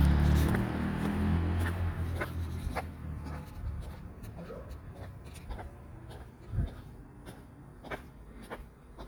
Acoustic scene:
residential area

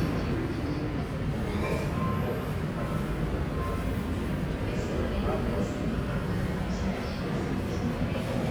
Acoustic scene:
subway station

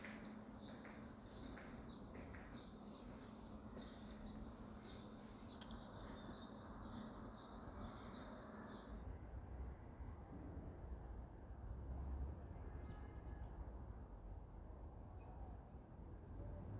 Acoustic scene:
residential area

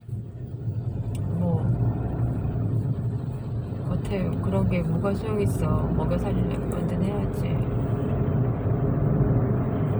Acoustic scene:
car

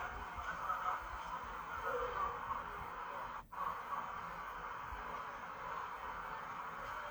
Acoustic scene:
park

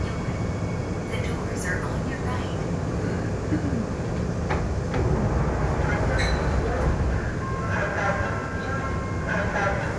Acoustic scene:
subway train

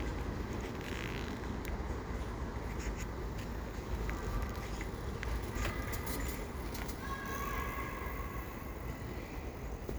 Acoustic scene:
residential area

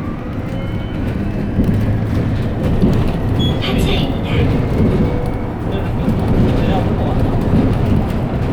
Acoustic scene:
bus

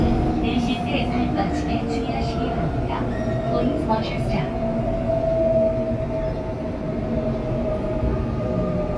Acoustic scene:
subway train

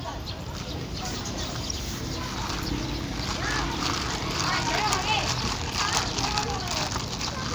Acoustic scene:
park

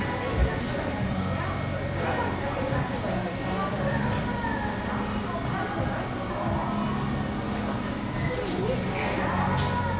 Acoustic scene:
cafe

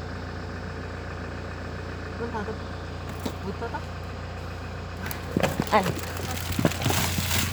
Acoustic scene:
car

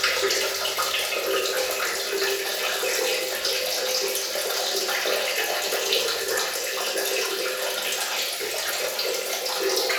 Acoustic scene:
restroom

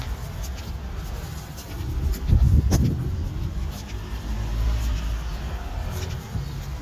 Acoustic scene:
residential area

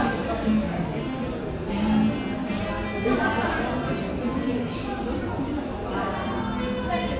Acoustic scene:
cafe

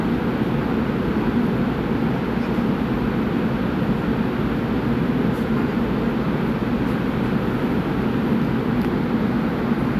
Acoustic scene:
subway train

